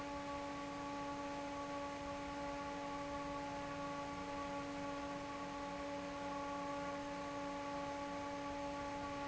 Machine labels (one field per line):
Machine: fan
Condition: normal